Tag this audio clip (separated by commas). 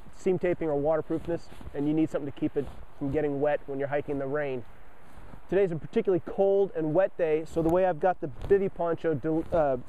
Speech